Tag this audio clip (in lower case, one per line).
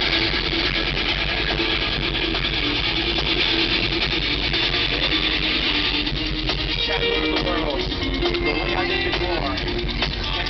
speech
music